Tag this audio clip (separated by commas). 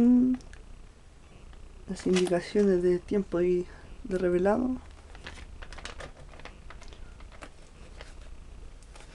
Speech